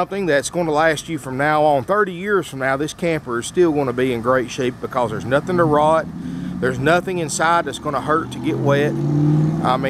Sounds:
Speech

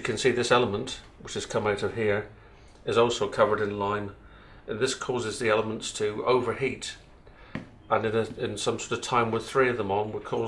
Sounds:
Speech

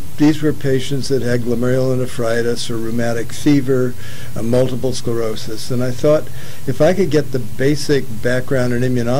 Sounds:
Speech, man speaking, Narration

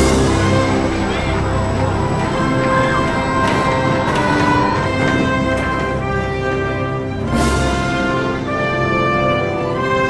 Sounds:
Music

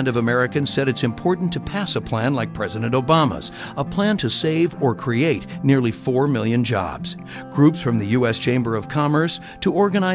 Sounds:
Speech, Music

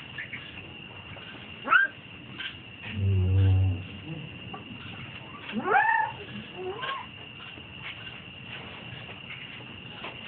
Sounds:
Animal

